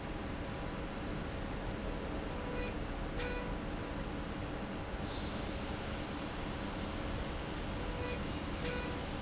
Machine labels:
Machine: slide rail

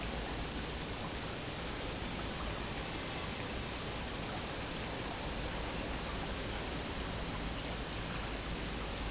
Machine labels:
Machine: pump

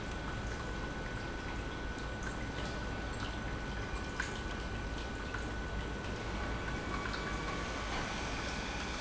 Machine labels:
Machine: pump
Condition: normal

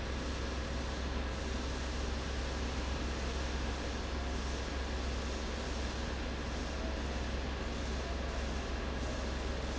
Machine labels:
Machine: fan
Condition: abnormal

